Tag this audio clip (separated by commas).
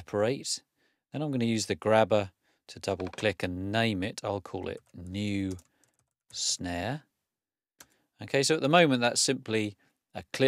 Speech